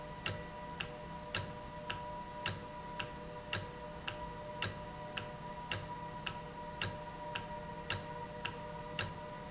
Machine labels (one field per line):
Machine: valve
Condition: normal